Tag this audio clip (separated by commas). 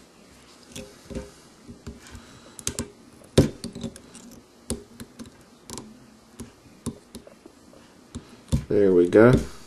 Speech